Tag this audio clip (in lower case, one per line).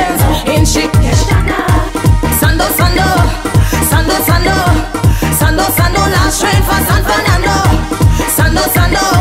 music